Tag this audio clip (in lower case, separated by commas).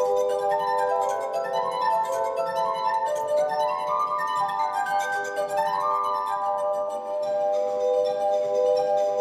glass, music